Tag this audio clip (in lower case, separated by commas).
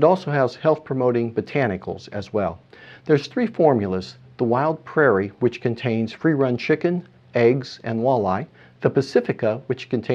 speech